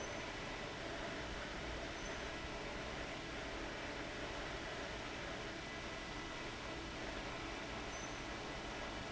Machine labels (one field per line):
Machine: fan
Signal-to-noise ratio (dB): 6 dB